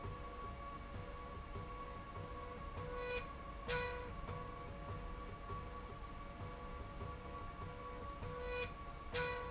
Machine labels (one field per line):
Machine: slide rail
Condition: normal